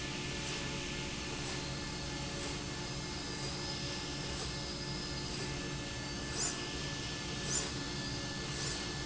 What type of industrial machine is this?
slide rail